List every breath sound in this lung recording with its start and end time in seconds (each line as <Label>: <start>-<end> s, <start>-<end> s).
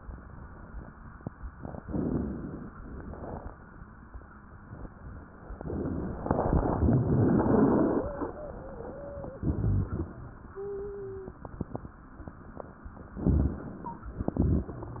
Inhalation: 1.78-2.70 s, 13.21-14.11 s
Wheeze: 8.03-9.44 s, 10.51-11.41 s, 13.79-14.11 s